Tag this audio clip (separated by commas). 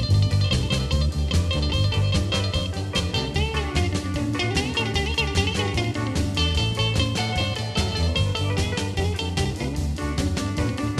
Music, Swing music